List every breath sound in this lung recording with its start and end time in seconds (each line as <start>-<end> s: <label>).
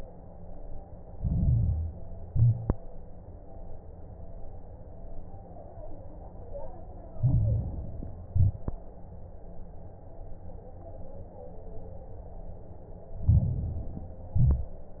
1.06-2.07 s: inhalation
1.06-2.07 s: crackles
2.20-2.73 s: exhalation
2.20-2.73 s: crackles
7.12-8.13 s: inhalation
7.12-8.13 s: crackles
8.30-8.83 s: exhalation
8.30-8.83 s: crackles
13.21-14.21 s: inhalation
13.21-14.21 s: crackles
14.35-14.86 s: exhalation
14.35-14.86 s: crackles